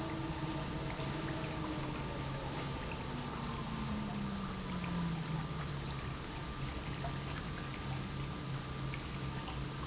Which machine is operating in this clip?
pump